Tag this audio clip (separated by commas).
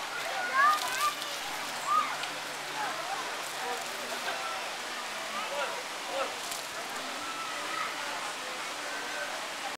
Speech, Water